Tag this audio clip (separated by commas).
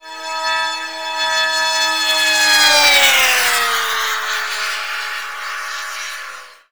Vehicle